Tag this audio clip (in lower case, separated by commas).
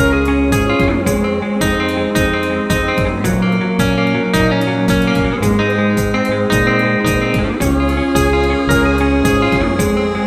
electronic music, music